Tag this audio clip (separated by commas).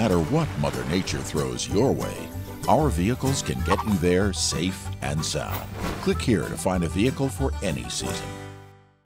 Music, Speech